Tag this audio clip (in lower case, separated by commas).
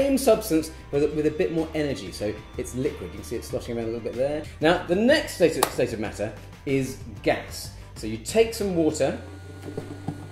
speech, music